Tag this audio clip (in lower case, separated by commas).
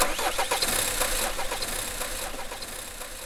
car, vehicle, motor vehicle (road)